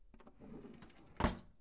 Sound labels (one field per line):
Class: drawer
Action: closing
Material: wooden